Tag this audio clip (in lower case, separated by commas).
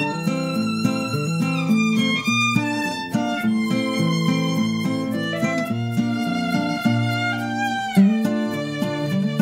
bowed string instrument, fiddle